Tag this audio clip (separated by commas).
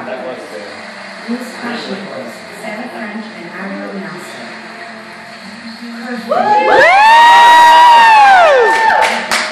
Male speech, Speech, Conversation, Female speech